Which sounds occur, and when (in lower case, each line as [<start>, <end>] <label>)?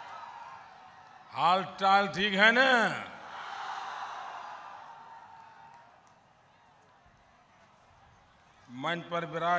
[0.00, 9.55] background noise
[3.24, 5.00] cheering
[6.42, 6.75] human voice
[7.11, 7.18] clicking
[8.62, 9.55] man speaking